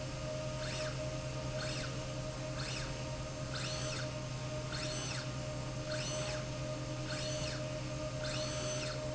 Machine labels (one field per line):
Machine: slide rail